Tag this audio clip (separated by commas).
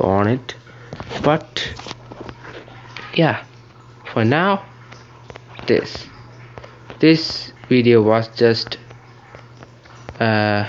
Speech, outside, rural or natural